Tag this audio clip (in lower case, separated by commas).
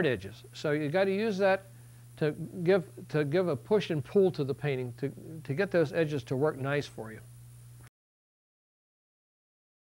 speech